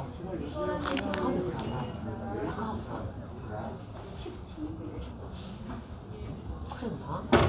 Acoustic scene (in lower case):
crowded indoor space